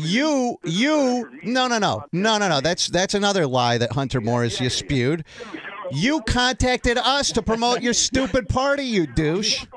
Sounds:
Speech

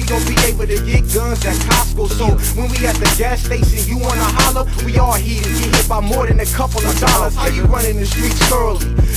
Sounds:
Music

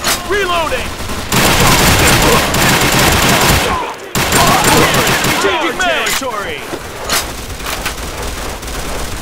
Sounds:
Speech

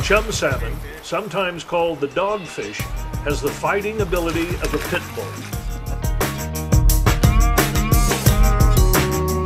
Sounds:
Music, Speech

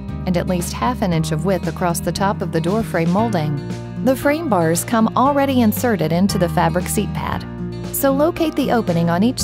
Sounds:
Speech, Music

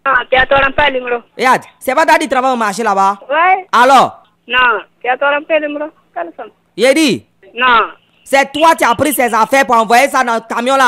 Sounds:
Speech

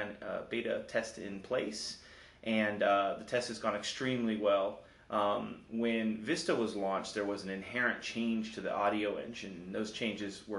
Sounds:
Speech

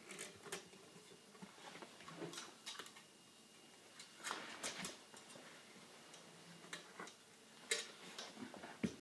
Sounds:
Tools

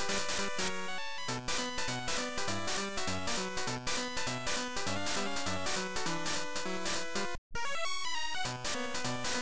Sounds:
Music, Video game music

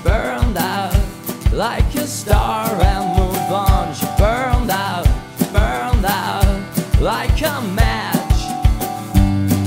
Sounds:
Rhythm and blues, Music

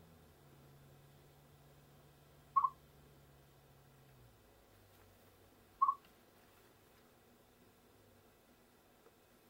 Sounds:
chipmunk chirping

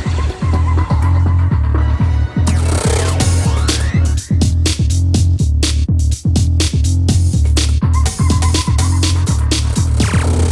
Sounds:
Music

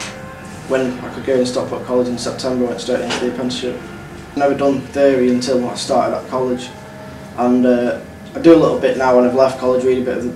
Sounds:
Speech

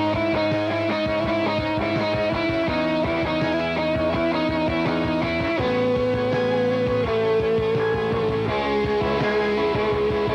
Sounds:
Music

